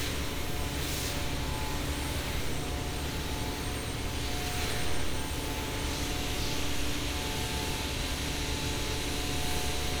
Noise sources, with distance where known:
unidentified powered saw, near

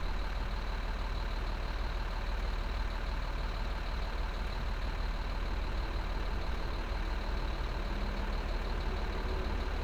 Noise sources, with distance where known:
large-sounding engine, near

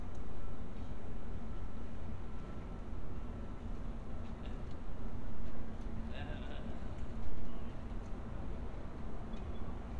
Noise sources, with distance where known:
person or small group talking

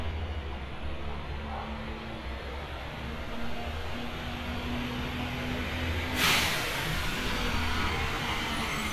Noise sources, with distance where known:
large-sounding engine, near

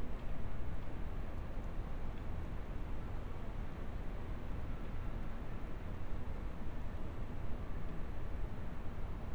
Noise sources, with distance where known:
background noise

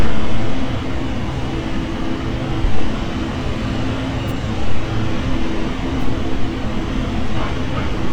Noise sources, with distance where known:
unidentified impact machinery

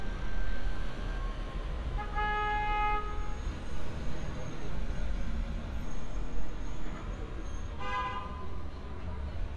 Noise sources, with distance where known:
car horn, near

